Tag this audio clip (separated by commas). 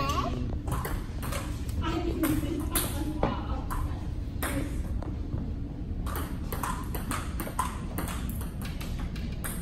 playing table tennis